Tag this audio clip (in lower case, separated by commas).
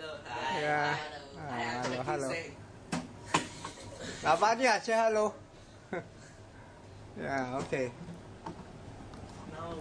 inside a small room, speech